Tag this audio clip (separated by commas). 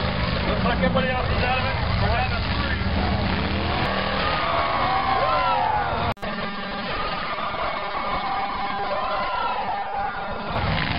outside, urban or man-made, Truck, Speech, Vehicle